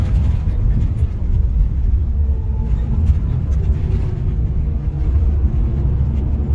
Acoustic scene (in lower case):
car